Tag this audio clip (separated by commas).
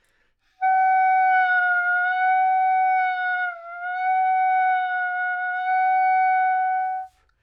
Music, Wind instrument, Musical instrument